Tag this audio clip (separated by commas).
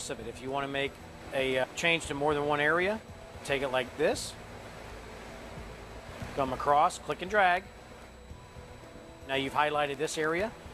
Speech